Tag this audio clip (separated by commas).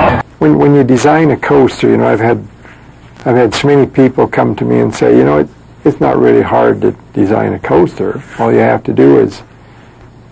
Speech